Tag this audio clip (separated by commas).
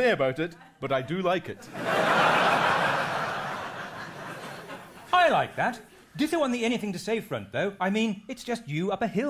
Speech